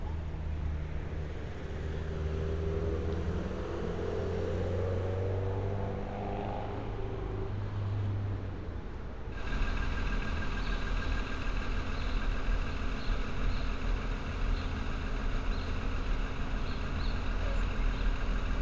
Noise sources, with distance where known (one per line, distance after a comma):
medium-sounding engine